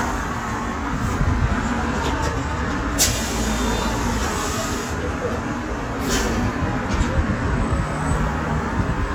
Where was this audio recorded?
on a street